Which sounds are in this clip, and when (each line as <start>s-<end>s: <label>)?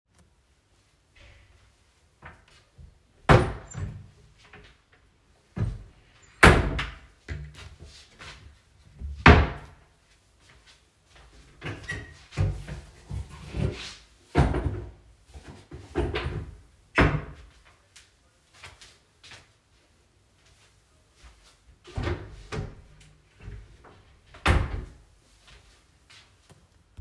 3.3s-4.2s: wardrobe or drawer
5.6s-7.2s: wardrobe or drawer
7.5s-8.6s: footsteps
9.0s-10.0s: wardrobe or drawer
10.2s-11.5s: footsteps
11.5s-13.2s: wardrobe or drawer
16.6s-17.4s: wardrobe or drawer
17.9s-21.9s: footsteps
21.9s-25.0s: wardrobe or drawer
25.4s-27.0s: footsteps